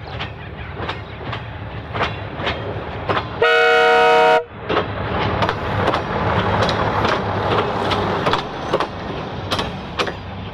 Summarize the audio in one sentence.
A train sounds its horn